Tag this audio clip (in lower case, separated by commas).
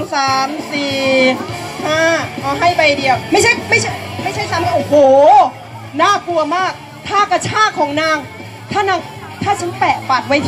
speech, music